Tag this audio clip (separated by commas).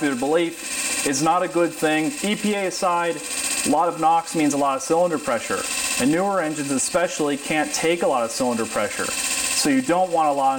inside a small room, Speech